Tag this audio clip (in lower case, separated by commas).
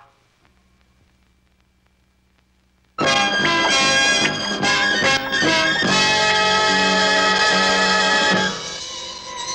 music